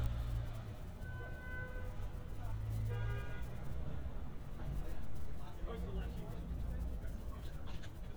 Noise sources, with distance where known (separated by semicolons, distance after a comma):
car horn, far; person or small group talking